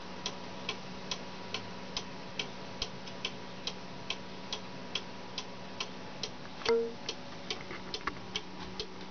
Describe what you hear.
Clock ticking with a beep towards the end